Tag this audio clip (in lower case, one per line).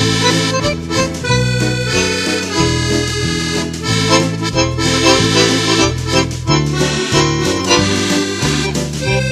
music